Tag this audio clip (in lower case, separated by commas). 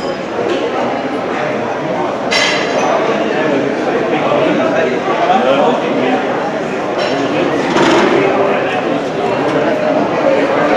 speech